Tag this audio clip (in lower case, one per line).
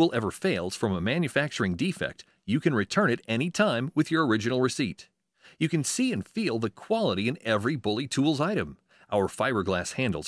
speech